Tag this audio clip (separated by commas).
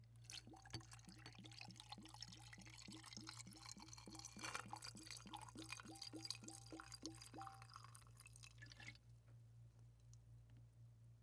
Liquid